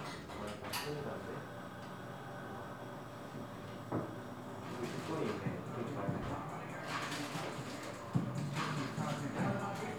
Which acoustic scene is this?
cafe